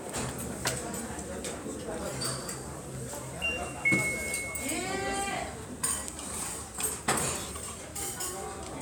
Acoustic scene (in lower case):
restaurant